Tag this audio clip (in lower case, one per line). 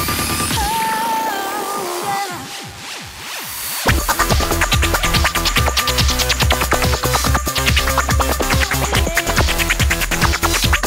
music
electronic music